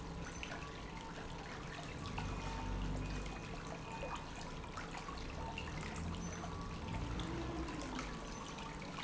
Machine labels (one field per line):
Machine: pump